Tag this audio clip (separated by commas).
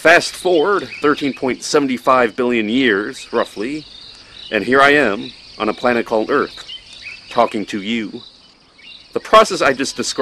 Speech